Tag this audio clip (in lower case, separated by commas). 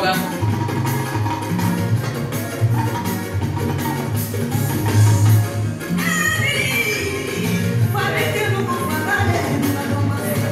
music, speech